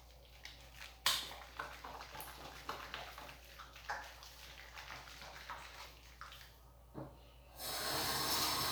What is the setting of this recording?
restroom